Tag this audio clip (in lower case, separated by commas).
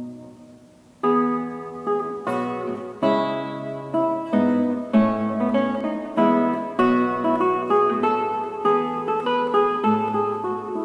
music